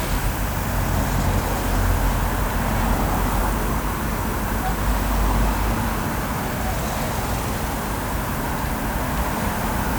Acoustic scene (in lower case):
street